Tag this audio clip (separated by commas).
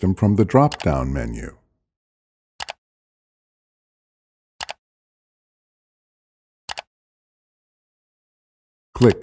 mouse clicking